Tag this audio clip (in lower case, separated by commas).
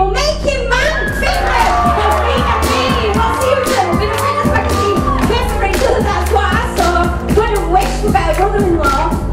rapping